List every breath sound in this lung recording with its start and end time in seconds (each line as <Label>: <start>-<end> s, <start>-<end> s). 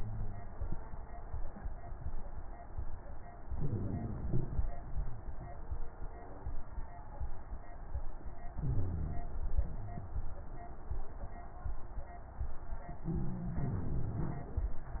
Inhalation: 0.00-0.74 s, 3.55-4.29 s, 8.57-9.20 s, 13.11-13.62 s
Exhalation: 4.31-4.75 s, 9.27-9.78 s, 13.61-14.95 s
Crackles: 0.00-0.74 s, 3.55-4.29 s, 4.31-4.75 s, 8.57-9.20 s, 9.27-9.78 s, 13.07-13.59 s, 13.61-14.95 s